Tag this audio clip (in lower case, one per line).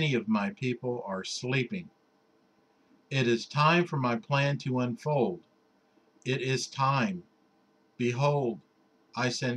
speech